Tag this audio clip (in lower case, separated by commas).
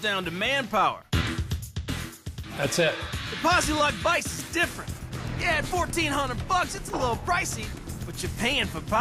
music, speech